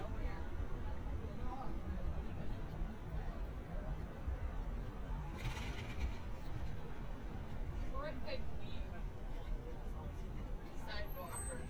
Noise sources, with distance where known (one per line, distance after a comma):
person or small group talking, near